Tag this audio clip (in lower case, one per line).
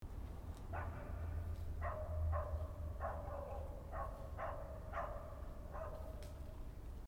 animal
bark
dog
domestic animals